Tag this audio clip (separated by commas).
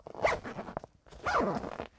Zipper (clothing), home sounds